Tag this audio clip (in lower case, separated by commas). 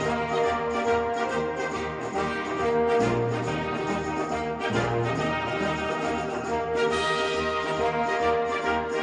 jazz, music, orchestra